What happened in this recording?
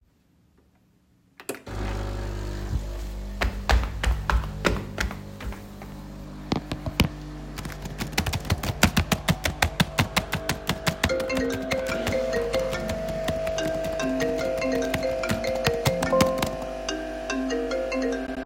First, I turned on the coffee machine, which runs continuously, and then I walked over to my laptop and started typing. While I was typing, my phone rang.